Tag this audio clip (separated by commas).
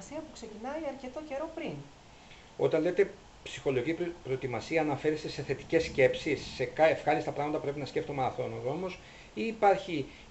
inside a small room, Speech